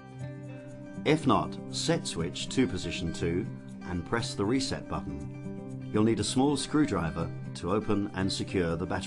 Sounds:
music, speech

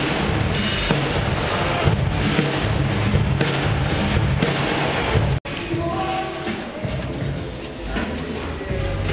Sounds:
music

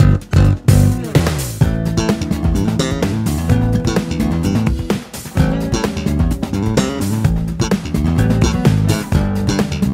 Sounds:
pop music, music

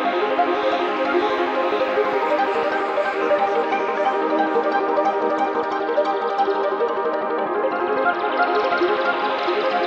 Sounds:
ambient music, music

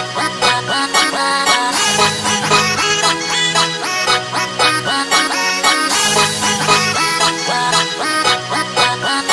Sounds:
music

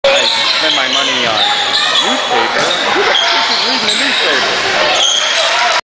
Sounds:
speech

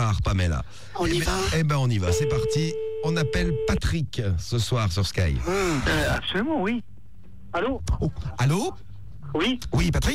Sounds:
radio, speech

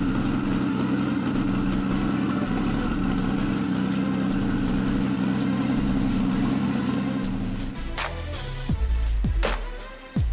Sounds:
music, inside a large room or hall, vehicle, car

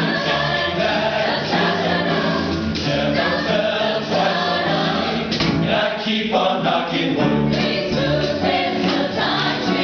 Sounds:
choir, male singing, female singing, music

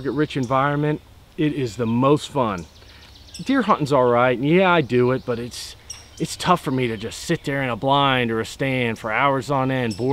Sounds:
speech, animal, insect

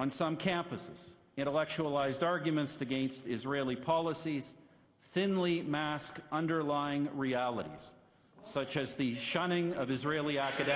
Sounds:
speech, man speaking

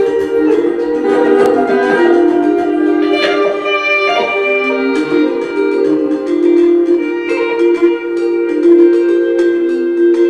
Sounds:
music

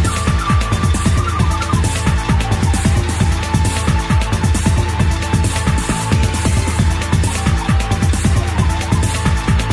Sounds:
music

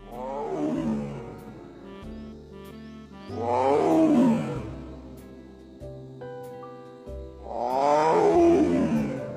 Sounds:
lions roaring

